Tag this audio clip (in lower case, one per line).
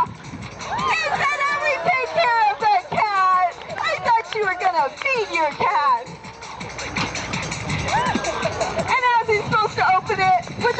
music
speech